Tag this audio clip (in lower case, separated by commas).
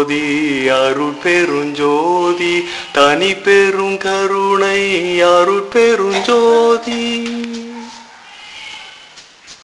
mantra